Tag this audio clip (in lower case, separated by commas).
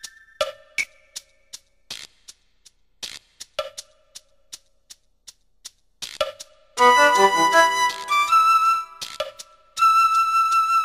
soundtrack music, music